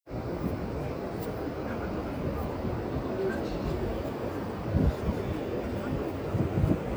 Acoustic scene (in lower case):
park